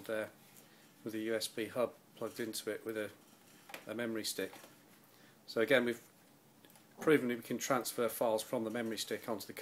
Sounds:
inside a small room, Speech

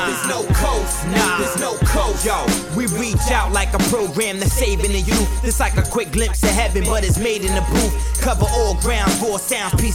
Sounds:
Music

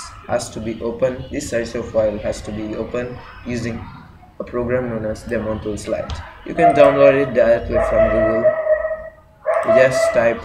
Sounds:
Speech

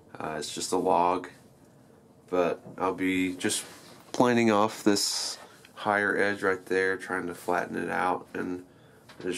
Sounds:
planing timber

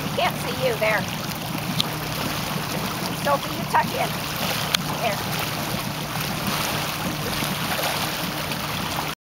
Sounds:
Speech

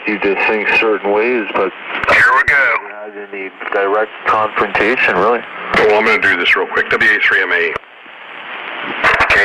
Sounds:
Radio, Speech

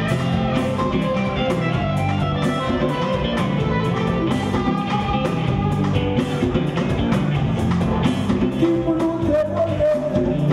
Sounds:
Singing, Music, Musical instrument, Rock and roll

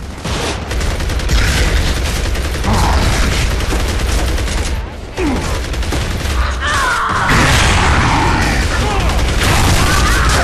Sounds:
Mechanisms

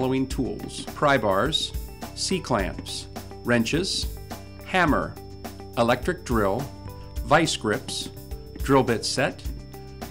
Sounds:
Music, Speech

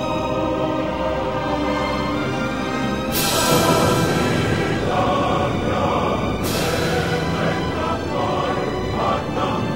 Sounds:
Theme music, Music

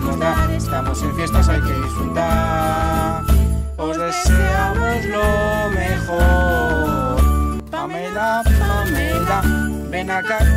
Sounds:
Music for children, Music

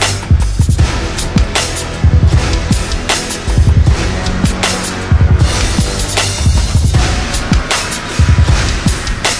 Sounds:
Music

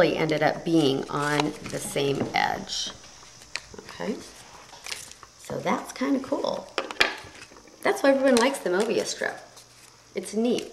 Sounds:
Speech, inside a small room

